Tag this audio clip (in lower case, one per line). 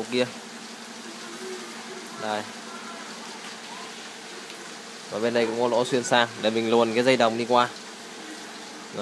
speech